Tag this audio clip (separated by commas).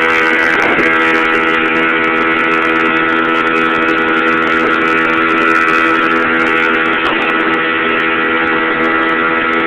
Vehicle